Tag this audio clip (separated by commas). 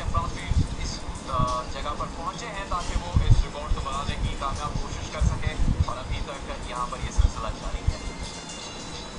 Music, Speech